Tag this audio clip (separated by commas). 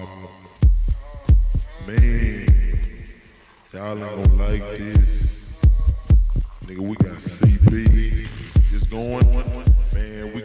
Speech